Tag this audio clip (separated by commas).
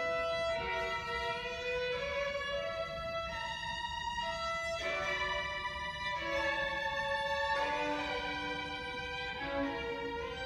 Violin, Music, Musical instrument